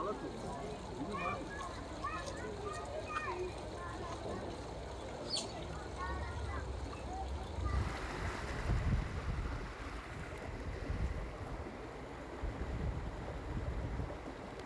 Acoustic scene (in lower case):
park